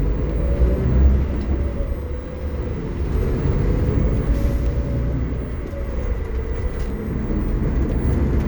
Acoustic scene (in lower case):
bus